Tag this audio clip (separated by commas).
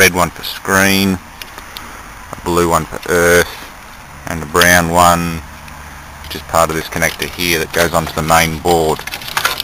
Speech